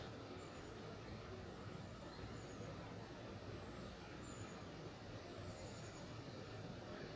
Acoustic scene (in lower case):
park